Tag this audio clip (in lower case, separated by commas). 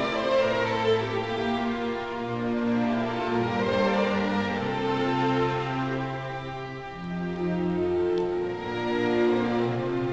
bowed string instrument, fiddle